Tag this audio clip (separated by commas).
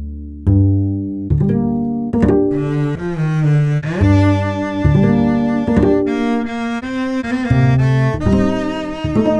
Music